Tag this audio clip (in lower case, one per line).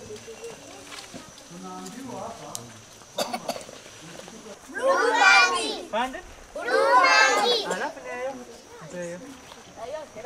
speech